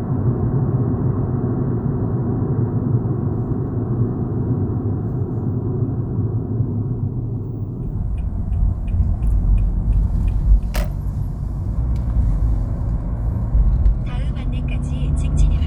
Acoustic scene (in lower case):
car